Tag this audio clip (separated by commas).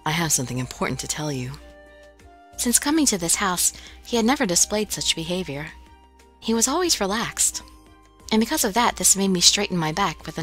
monologue, Music, Speech